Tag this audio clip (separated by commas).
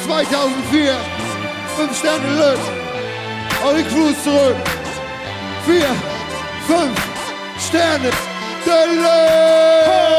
Music, Speech